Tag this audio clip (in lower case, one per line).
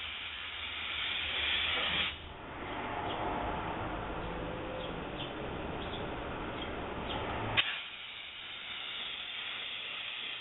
car
vehicle